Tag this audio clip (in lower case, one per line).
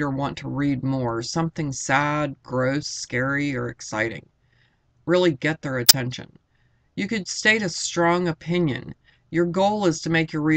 speech